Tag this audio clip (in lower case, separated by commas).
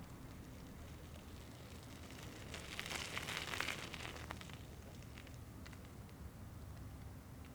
vehicle, bicycle